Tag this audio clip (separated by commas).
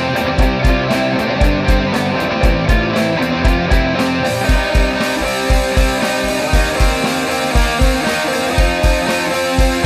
Rock and roll, Music